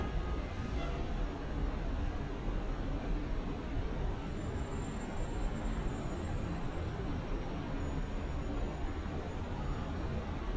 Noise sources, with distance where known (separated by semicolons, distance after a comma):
car horn, far